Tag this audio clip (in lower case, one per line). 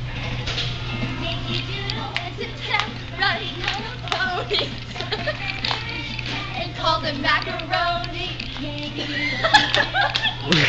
music
female singing